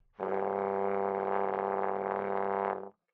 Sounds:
brass instrument
music
musical instrument

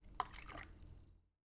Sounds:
splash
water
liquid

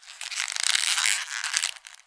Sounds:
squeak

